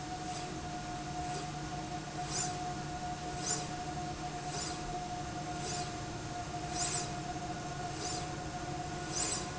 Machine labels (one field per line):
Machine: slide rail